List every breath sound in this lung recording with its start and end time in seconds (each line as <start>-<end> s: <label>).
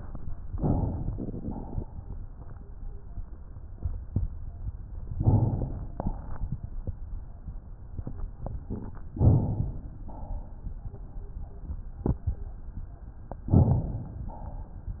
0.53-1.14 s: inhalation
1.14-1.88 s: exhalation
5.18-5.96 s: inhalation
5.96-6.60 s: exhalation
9.19-9.96 s: inhalation
9.96-10.80 s: exhalation
13.51-14.33 s: inhalation
14.33-15.00 s: exhalation